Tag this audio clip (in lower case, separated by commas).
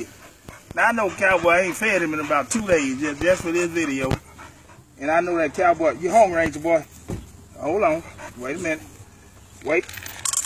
speech, animal, pets, dog